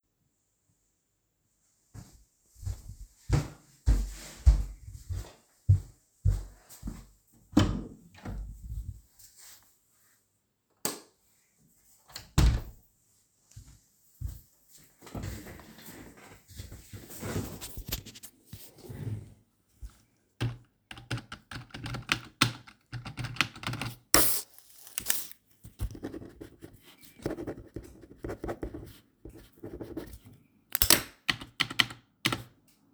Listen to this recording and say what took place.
I walked to the office door (in the hallway) opened it, turned on the light and walked to my desk. I moved away my chair and sat down. I started typing, clicked with a ruler and wrote something on a piece of paper.